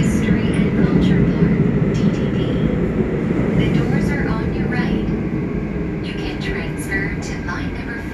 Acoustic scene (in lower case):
subway train